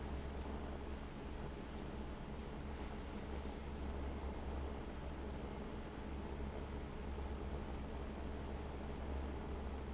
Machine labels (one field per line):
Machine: fan